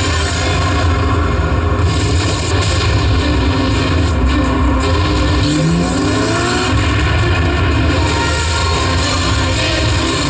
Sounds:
car, auto racing, vehicle

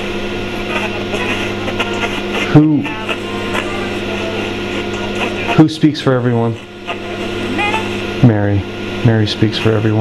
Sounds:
speech

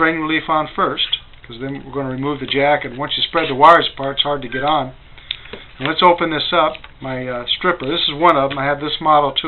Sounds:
speech

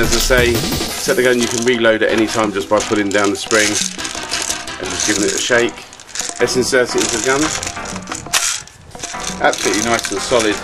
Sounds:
music, speech

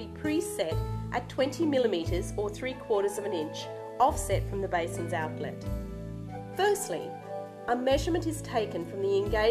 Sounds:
female speech, speech, music

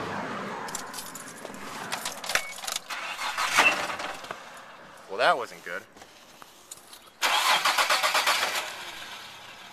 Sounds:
motor vehicle (road), engine, speech, car, vehicle

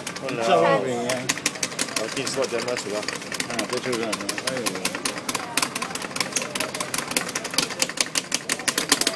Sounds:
speech, inside a small room

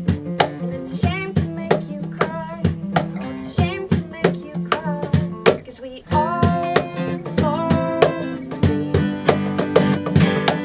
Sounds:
music

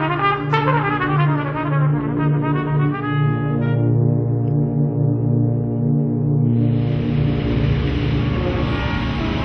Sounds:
orchestra, musical instrument, music

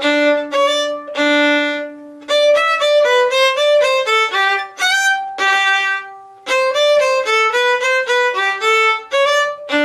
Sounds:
fiddle, music, musical instrument

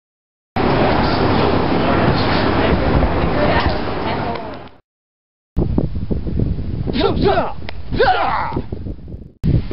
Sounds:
inside a large room or hall, outside, rural or natural, speech

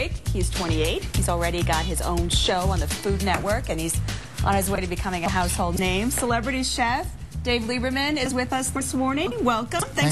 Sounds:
music, speech

